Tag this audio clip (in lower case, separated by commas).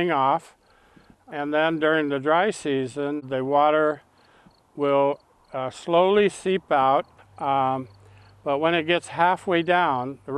speech